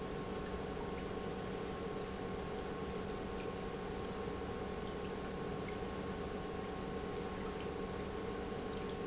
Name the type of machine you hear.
pump